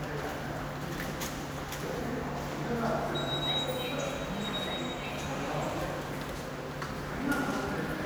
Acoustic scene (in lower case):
subway station